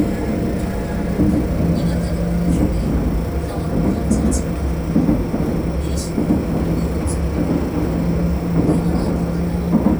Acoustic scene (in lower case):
subway train